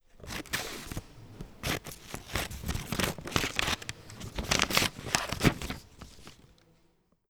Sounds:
home sounds, scissors

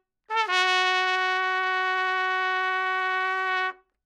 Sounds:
trumpet, musical instrument, brass instrument, music

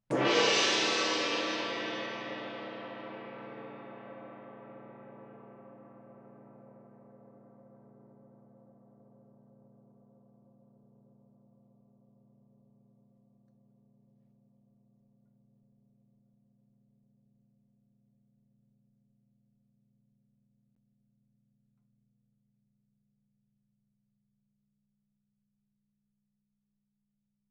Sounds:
music, musical instrument, percussion, gong

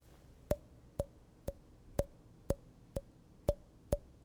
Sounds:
tap

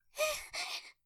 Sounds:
gasp, breathing, respiratory sounds

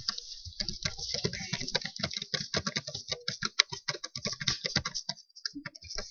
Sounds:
computer keyboard, typing, domestic sounds

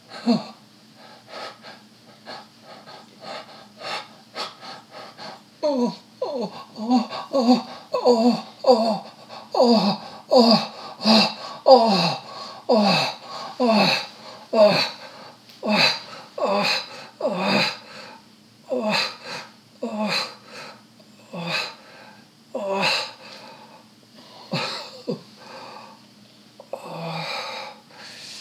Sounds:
human voice

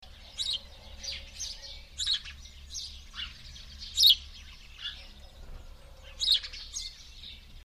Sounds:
bird, bird vocalization, wild animals, tweet, animal

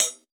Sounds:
cymbal, musical instrument, hi-hat, percussion, music

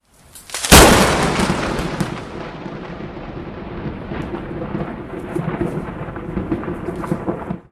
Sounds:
thunder, thunderstorm

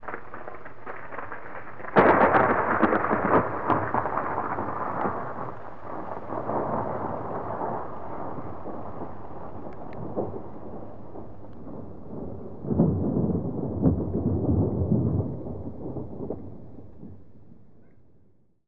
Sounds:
thunderstorm, thunder

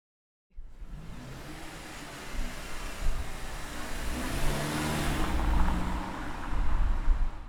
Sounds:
motor vehicle (road), vehicle, engine, car

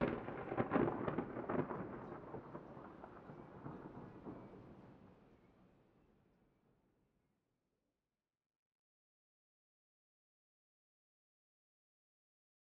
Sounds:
thunder, thunderstorm

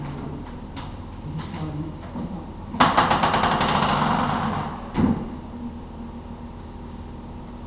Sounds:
door, domestic sounds

